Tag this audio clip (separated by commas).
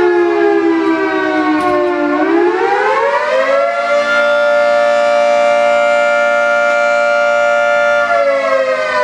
Siren, Civil defense siren